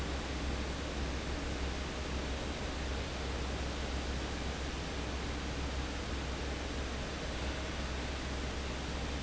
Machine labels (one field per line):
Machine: fan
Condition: abnormal